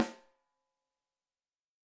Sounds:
musical instrument, music, snare drum, drum, percussion

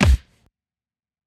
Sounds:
thud

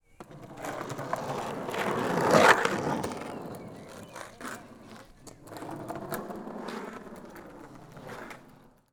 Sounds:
vehicle, skateboard

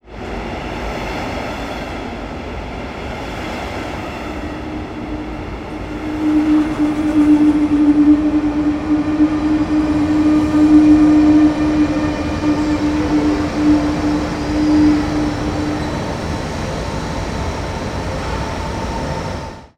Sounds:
vehicle, train, rail transport

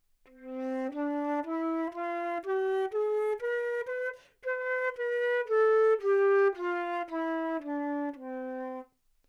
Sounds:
music, musical instrument, wind instrument

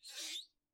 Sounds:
hands, squeak

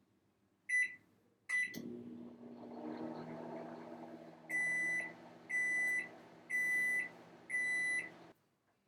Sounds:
microwave oven, domestic sounds

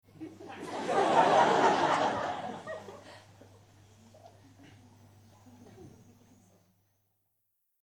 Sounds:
human voice, laughter

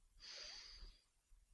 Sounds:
respiratory sounds

